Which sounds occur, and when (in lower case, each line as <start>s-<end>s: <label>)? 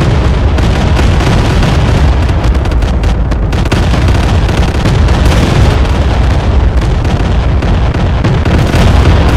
0.0s-9.3s: eruption
0.0s-9.3s: video game sound